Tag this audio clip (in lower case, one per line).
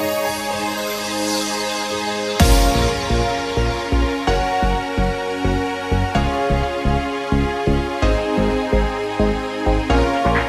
music